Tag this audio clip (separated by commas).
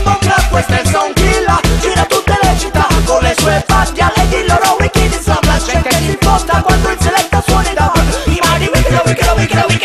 Music, Afrobeat, Reggae